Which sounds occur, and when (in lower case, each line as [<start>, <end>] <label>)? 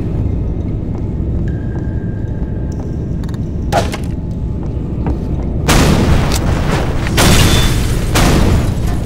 [0.00, 9.05] video game sound
[0.54, 0.72] sound effect
[1.40, 1.56] sound effect
[2.20, 2.36] sound effect
[2.69, 2.80] sound effect
[3.21, 3.34] sound effect
[3.67, 3.89] sound effect
[3.89, 4.12] generic impact sounds
[4.61, 4.73] sound effect
[5.01, 5.11] sound effect
[5.58, 9.05] sound effect